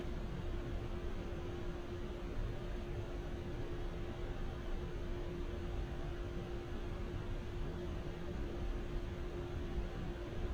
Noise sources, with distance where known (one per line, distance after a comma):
background noise